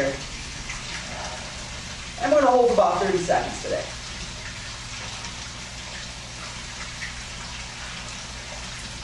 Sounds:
water

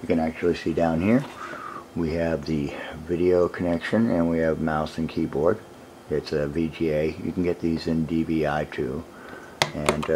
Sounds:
speech

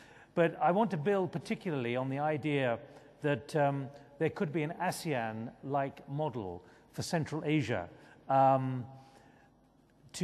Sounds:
speech

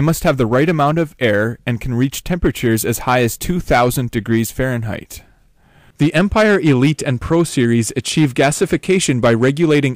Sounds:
speech

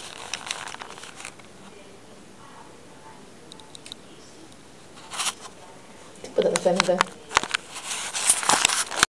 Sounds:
speech

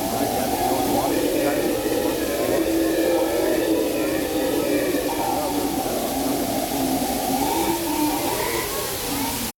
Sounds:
speech

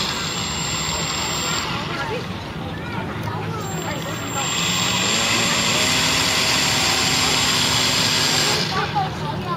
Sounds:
speech
vehicle
motorboat

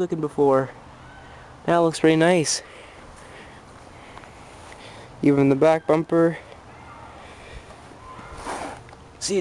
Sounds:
speech

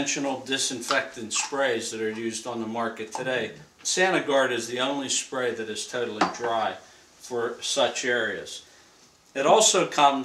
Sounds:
speech

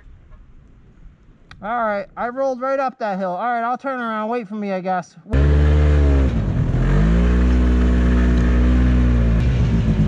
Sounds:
driving snowmobile

